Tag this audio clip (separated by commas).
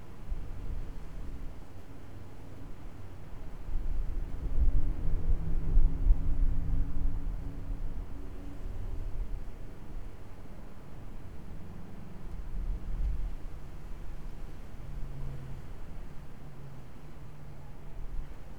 Wind